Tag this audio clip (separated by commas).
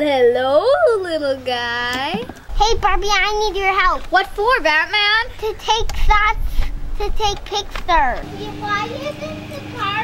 Speech